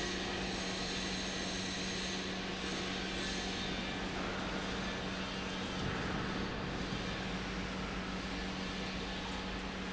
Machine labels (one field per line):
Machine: pump